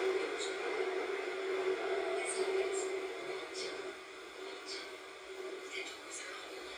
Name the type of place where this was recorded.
subway train